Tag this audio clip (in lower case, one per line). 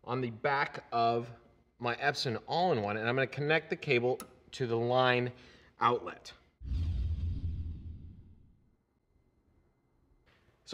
speech